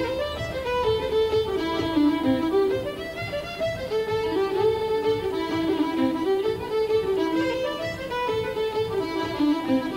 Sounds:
music
musical instrument
folk music
bowed string instrument

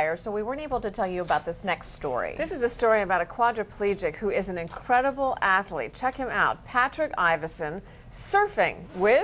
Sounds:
speech
ocean

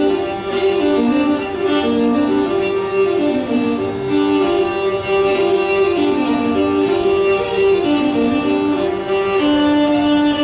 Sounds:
musical instrument
violin
music

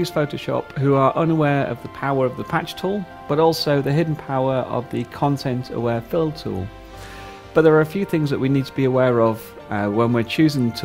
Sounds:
speech
music

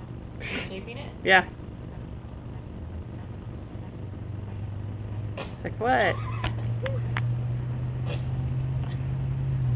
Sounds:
animal
speech

